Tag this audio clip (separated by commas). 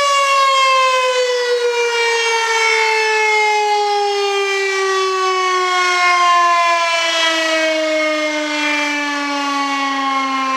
Siren, Civil defense siren